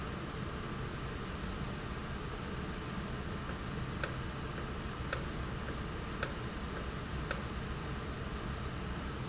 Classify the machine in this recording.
valve